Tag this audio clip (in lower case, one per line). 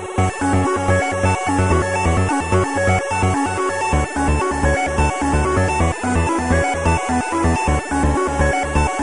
music